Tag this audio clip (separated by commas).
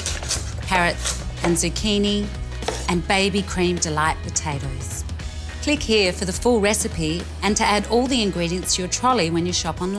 Music, Speech